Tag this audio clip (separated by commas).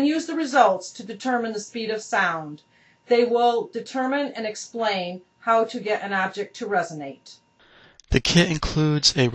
Speech